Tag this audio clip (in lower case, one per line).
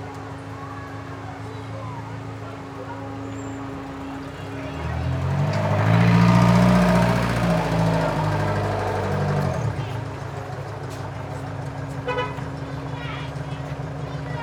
engine
truck
vehicle
vroom
motor vehicle (road)